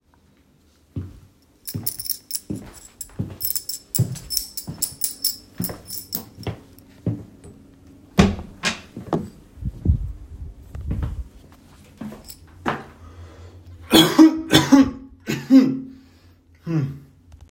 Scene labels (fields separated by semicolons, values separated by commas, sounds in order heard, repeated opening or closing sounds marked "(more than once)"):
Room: living room; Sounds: footsteps, keys, door